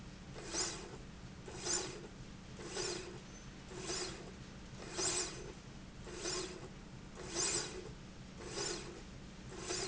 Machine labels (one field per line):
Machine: slide rail